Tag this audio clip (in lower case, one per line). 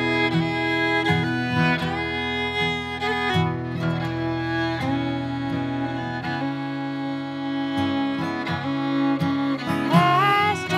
music